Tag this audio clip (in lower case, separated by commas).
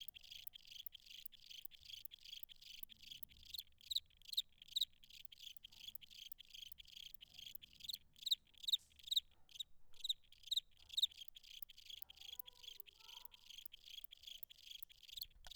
insect, cricket, wild animals, animal